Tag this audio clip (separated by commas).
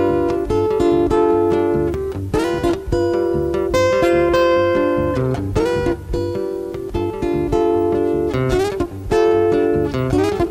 Music